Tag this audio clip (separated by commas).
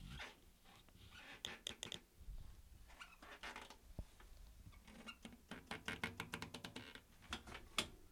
Squeak